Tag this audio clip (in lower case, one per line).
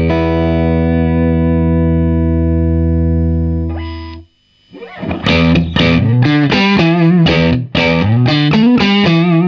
music
distortion